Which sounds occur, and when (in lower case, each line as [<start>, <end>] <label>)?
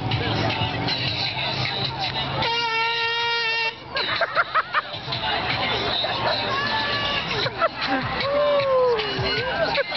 [0.00, 9.95] crowd
[0.00, 9.95] music
[0.00, 9.95] roadway noise
[0.44, 1.09] synthetic singing
[1.33, 2.25] human voice
[1.46, 2.51] male singing
[2.02, 2.11] generic impact sounds
[2.40, 3.70] truck horn
[3.37, 3.73] laughter
[3.89, 4.84] laughter
[4.57, 4.91] human voice
[4.84, 6.50] male speech
[5.63, 5.78] laughter
[6.44, 7.24] human voice
[7.33, 7.69] laughter
[7.85, 8.02] human voice
[8.14, 8.64] male singing
[8.21, 9.95] human voice
[8.87, 9.43] male singing
[9.71, 9.84] laughter